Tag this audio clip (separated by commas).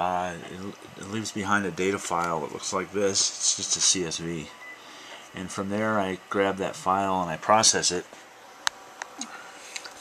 Speech